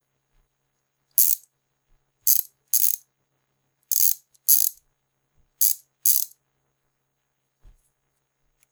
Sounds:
Tools

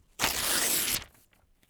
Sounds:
Tearing

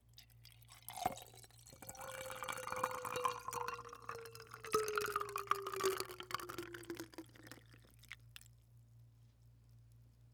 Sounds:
Liquid

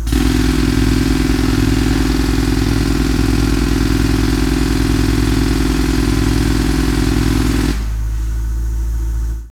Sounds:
Tools

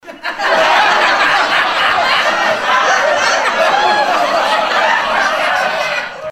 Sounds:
Laughter, Human voice, Human group actions, Crowd

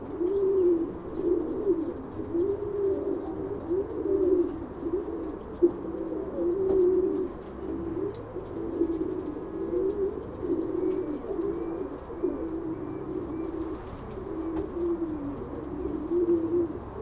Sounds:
Bird, Wild animals, Animal

